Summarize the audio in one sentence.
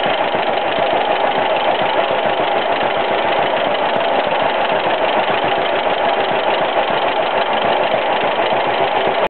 An engine is idling